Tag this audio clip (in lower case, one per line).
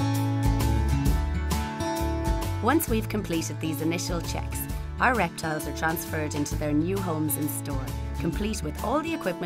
music
speech